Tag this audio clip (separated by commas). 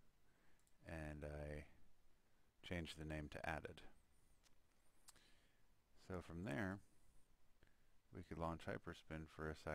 Speech